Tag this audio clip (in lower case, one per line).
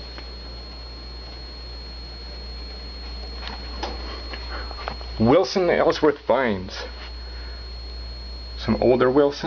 speech